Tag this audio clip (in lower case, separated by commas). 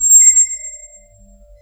squeak